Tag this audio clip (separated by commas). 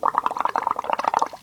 Liquid